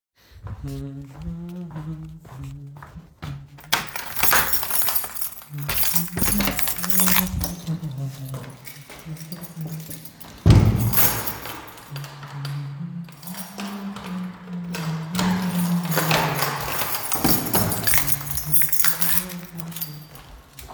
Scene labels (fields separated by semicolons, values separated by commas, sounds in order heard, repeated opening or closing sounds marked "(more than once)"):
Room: hallway; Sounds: footsteps, keys, door (more than once)